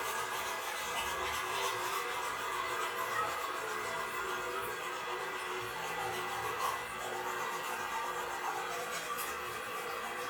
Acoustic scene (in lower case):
restroom